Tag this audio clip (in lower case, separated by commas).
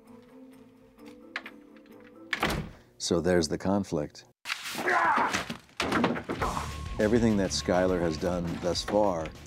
music, speech, inside a small room